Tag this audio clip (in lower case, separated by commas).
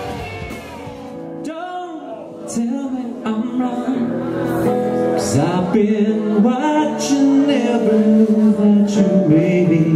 speech, singing, music, male singing